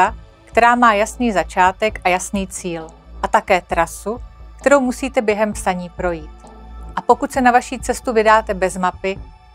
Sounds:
speech, music

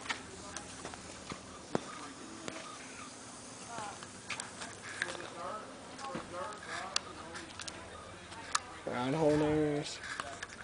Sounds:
speech

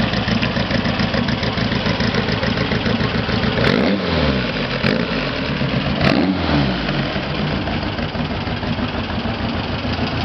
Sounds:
vehicle, car

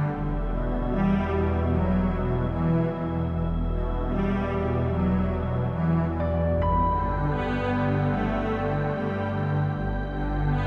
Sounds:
music

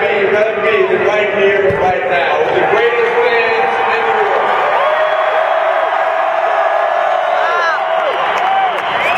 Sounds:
male speech, narration, speech

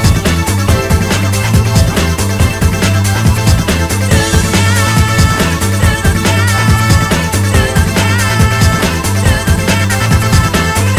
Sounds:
music

